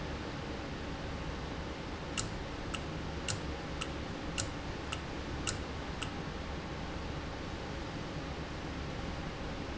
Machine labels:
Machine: valve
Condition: normal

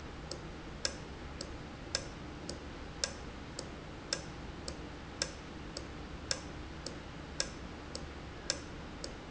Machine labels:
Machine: valve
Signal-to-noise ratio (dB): 0 dB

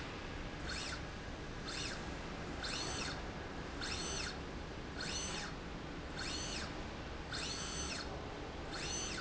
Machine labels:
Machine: slide rail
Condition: normal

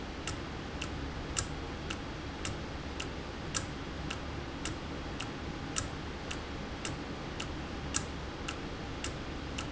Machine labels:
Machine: valve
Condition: normal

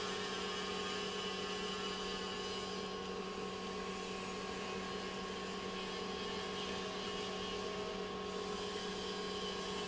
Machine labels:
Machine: pump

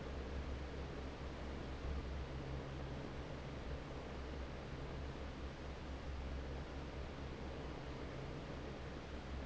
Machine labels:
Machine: fan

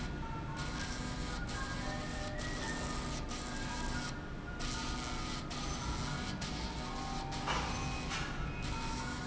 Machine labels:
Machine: slide rail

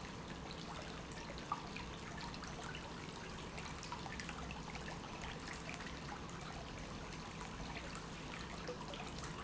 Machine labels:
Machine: pump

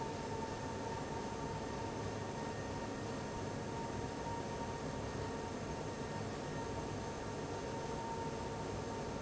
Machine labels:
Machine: fan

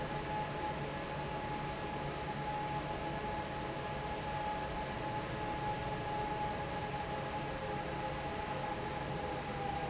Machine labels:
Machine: fan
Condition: normal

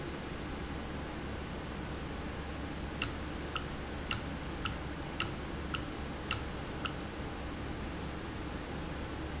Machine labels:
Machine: valve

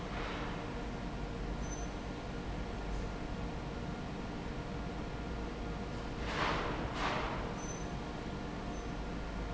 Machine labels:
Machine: fan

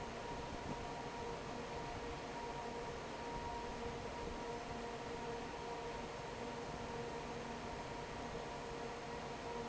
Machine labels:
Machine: fan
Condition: normal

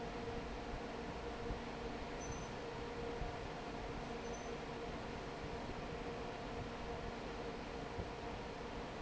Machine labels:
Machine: fan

